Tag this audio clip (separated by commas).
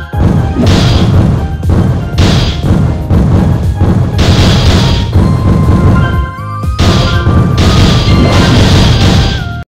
Music, Bang